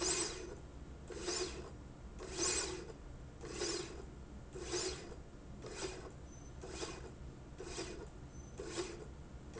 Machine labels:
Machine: slide rail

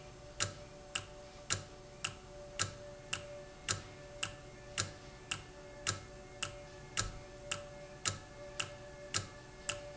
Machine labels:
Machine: valve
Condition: normal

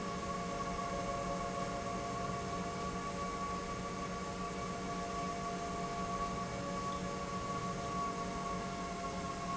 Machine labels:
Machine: pump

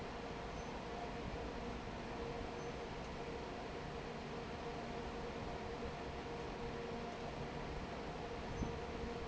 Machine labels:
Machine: fan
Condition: normal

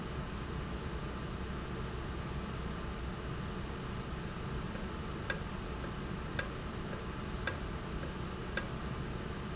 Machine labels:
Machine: valve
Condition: normal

